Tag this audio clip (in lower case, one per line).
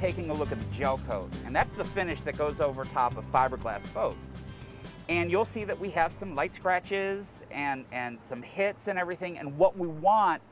speech
music